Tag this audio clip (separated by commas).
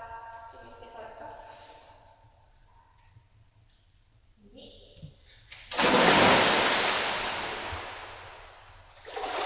swimming